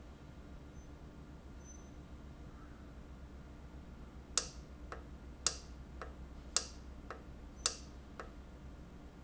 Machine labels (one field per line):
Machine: valve